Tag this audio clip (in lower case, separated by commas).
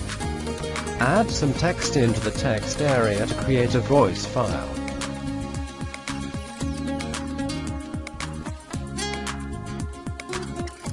speech, male speech, music